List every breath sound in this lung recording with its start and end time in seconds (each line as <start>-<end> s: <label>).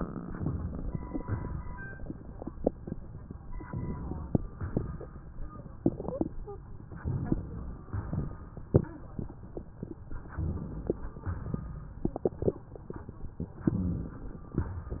3.28-4.41 s: inhalation
4.44-5.70 s: exhalation
6.80-7.89 s: inhalation
7.91-9.58 s: exhalation
10.19-11.18 s: inhalation
11.20-12.81 s: exhalation